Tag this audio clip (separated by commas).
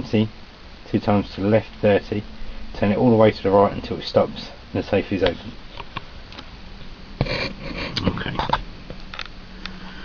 Speech